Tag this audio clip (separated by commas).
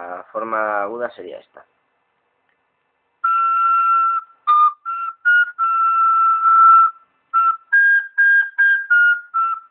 Wind instrument, Flute, Music, Speech